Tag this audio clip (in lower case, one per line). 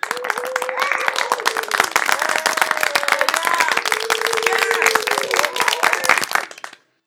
human group actions
applause
cheering